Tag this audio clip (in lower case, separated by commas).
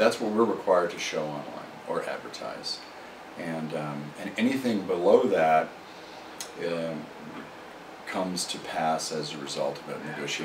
speech